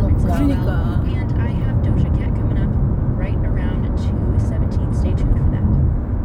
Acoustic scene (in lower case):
car